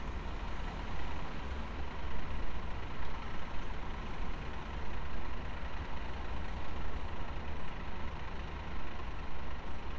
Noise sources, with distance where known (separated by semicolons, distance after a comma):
medium-sounding engine, near